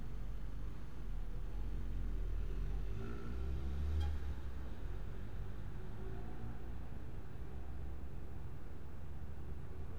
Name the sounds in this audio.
medium-sounding engine